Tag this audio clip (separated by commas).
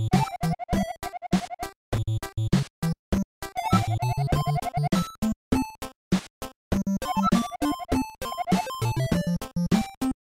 Music